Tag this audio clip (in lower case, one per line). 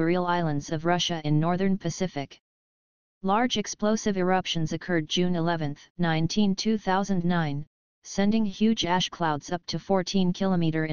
speech